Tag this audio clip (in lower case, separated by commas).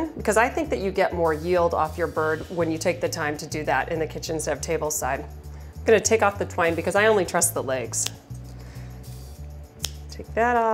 music, speech